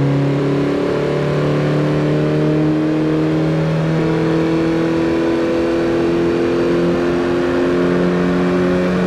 A car passing by in the road